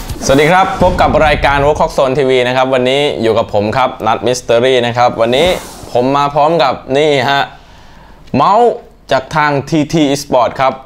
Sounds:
speech

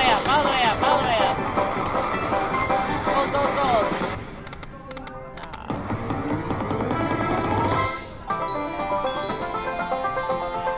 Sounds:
slot machine

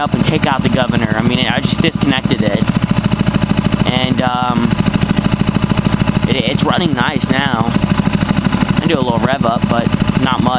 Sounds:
speech

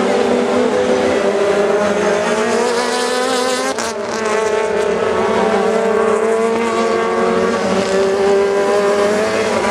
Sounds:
vehicle, car, car passing by, motor vehicle (road)

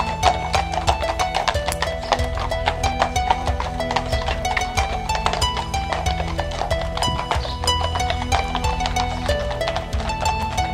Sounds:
clip-clop, music, animal

